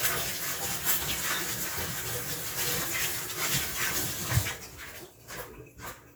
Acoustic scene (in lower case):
kitchen